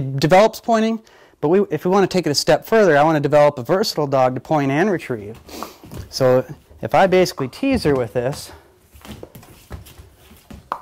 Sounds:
Speech

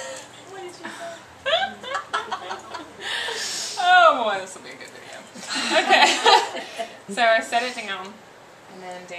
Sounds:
Speech, Hands

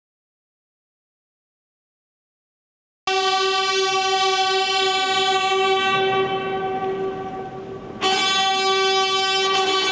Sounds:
Music, inside a large room or hall

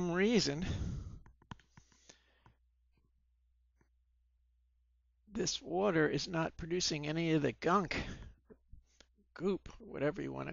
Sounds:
Speech

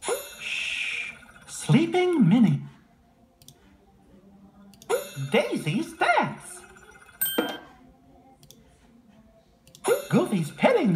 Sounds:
Speech

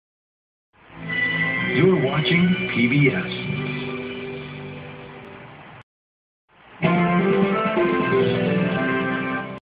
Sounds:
Music, Speech, Television

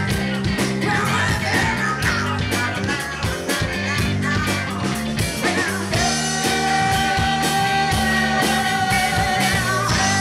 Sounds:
Rhythm and blues, Music

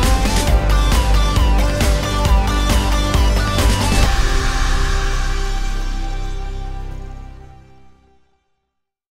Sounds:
Music

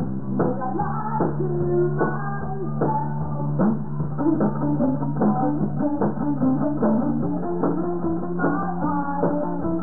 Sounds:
Music

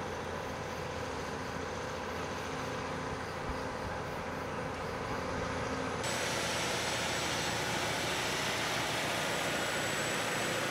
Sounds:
Vehicle, Truck

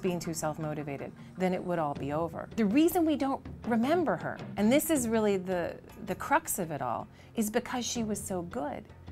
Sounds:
Female speech, Music, Speech

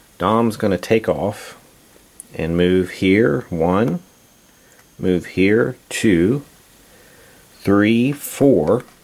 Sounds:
Speech

